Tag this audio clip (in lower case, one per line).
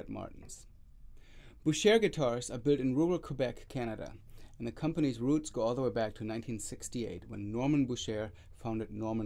speech